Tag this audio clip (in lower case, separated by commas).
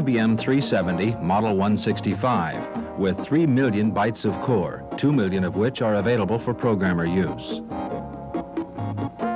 speech, music